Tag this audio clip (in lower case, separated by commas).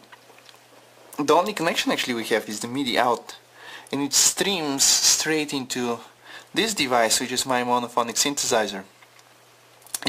speech